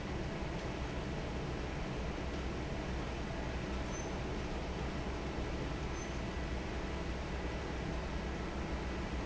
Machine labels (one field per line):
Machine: fan